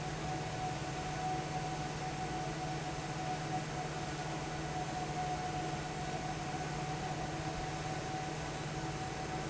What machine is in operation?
fan